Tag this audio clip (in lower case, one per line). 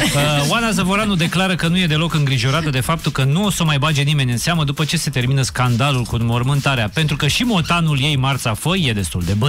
speech
music